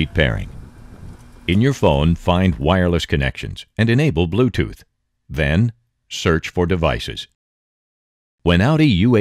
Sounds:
speech

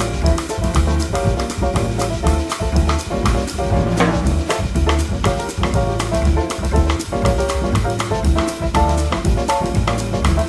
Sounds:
drum kit, drum, rimshot, percussion

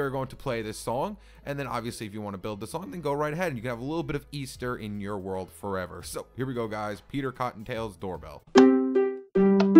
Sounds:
speech, music

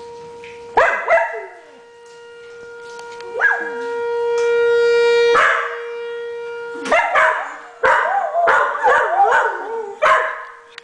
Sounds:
siren

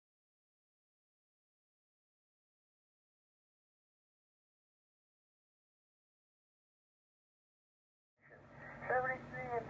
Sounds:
speech, radio

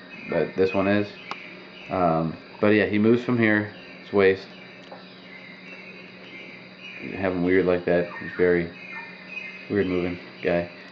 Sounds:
inside a small room, speech

